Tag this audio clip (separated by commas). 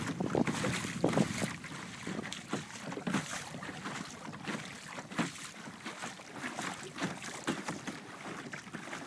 Boat, canoe, kayak rowing, Vehicle